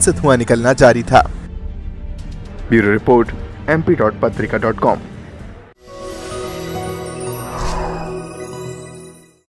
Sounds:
music
speech

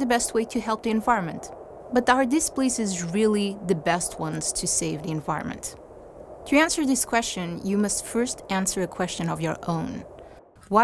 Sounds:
speech

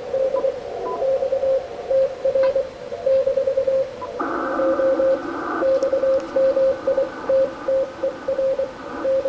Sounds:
inside a small room

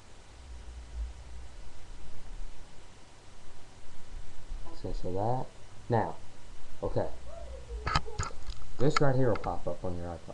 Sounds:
speech

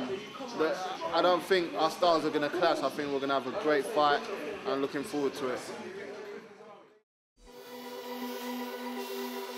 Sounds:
electronica

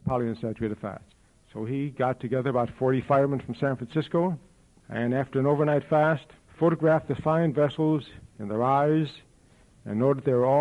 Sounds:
male speech
narration
speech

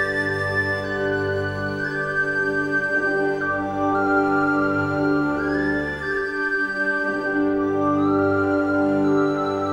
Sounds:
music

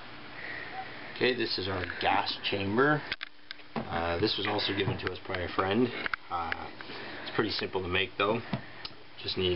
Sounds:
speech

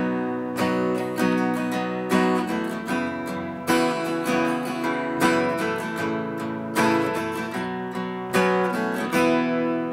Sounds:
musical instrument
guitar
strum
music
plucked string instrument

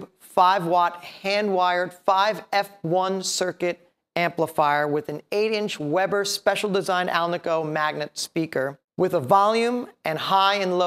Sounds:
speech

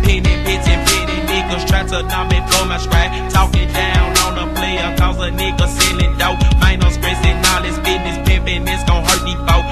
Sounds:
music

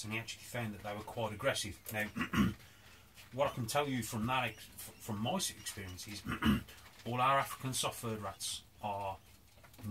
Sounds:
speech

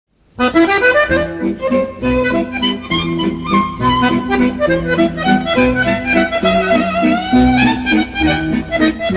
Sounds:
accordion

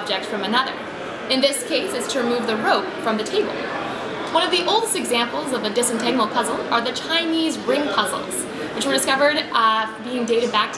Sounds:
speech

